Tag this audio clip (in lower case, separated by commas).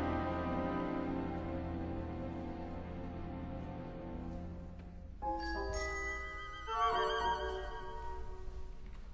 musical instrument, music